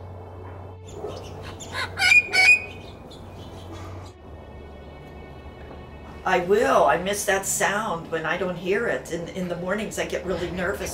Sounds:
bird, chirp, bird song

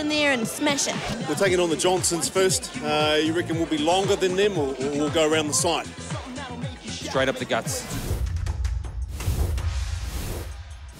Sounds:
music, speech

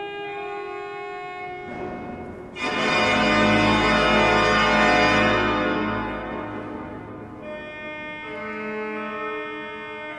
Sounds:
hammond organ, organ

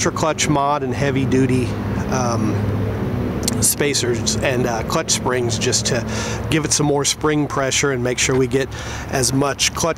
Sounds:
speech

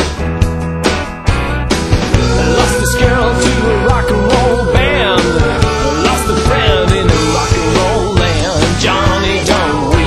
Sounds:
music, blues

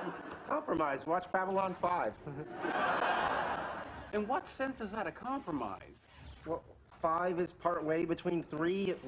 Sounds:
speech

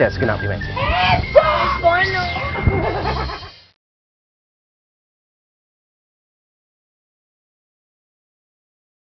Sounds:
speech, radio, music

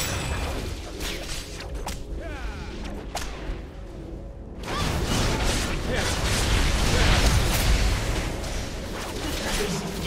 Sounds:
speech, music

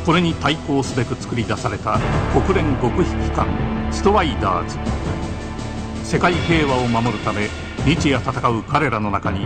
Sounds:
speech, music

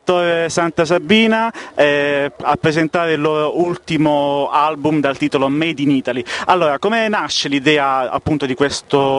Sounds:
speech

